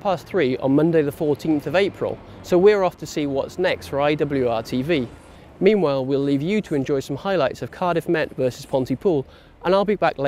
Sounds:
Speech

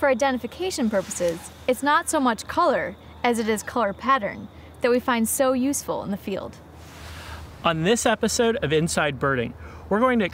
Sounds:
Speech

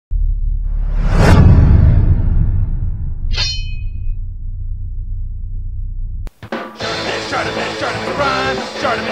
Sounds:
Music

